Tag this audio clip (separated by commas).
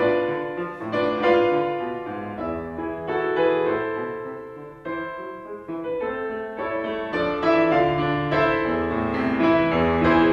Musical instrument, Music